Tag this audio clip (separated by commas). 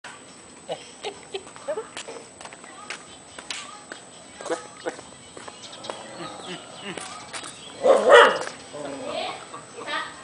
Bow-wow, Speech, dog bow-wow, Animal